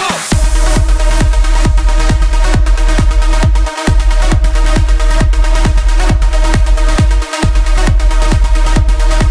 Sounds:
Music

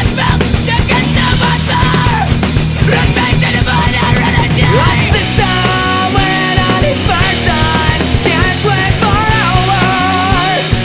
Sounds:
Music

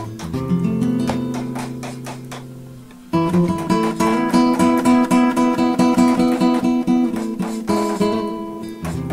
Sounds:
Chop, Music

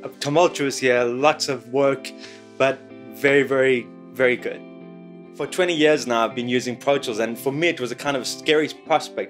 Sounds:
Speech, Music

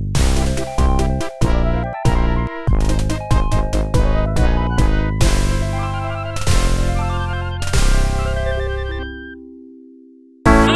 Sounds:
Music

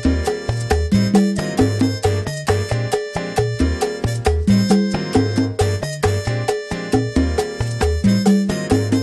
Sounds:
playing timbales

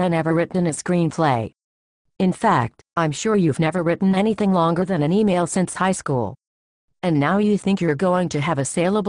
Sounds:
Speech

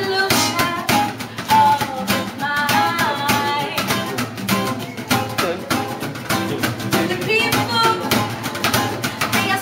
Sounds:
Music, Speech

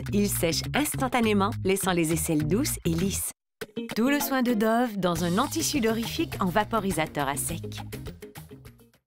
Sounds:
Speech, Music

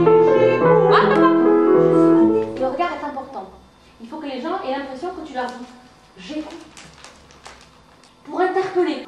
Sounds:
Speech, Music

